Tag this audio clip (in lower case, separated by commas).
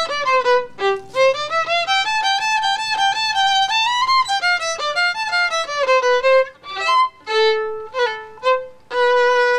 musical instrument, violin, music